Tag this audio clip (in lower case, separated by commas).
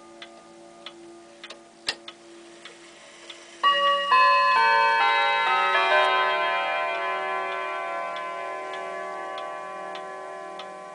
tick-tock